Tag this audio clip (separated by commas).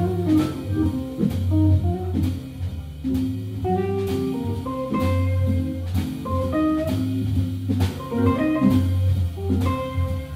Music, Percussion